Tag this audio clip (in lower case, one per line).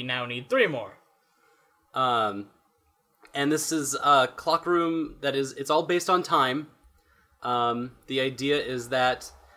speech